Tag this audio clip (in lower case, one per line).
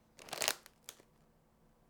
crinkling